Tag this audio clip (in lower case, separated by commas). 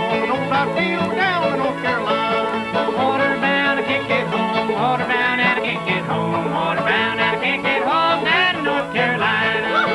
folk music, bluegrass, singing, music, song, country, banjo